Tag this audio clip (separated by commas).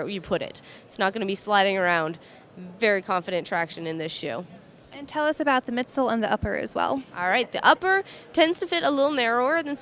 inside a small room, Speech